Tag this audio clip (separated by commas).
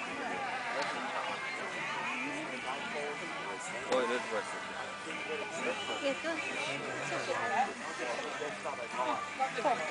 Music, Speech